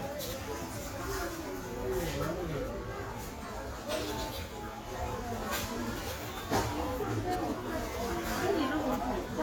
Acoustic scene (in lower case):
crowded indoor space